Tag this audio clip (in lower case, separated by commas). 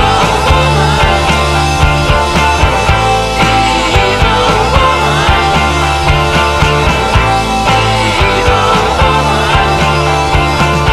rock music, music